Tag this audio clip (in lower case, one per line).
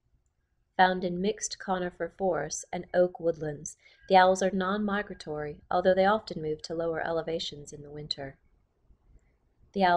speech